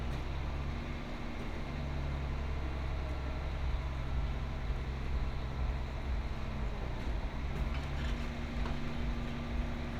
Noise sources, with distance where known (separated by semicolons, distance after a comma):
medium-sounding engine, far